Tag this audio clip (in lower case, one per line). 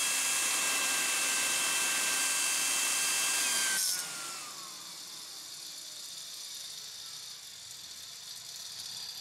inside a small room
drill